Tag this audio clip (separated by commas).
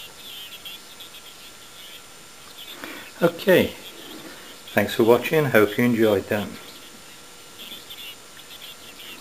Radio, Speech